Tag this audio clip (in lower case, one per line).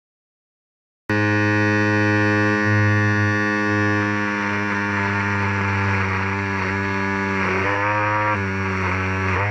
cutting hair with electric trimmers